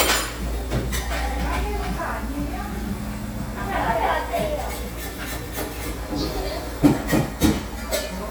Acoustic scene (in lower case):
cafe